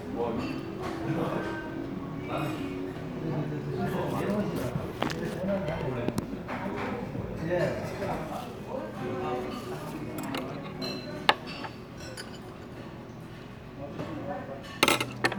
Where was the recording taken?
in a crowded indoor space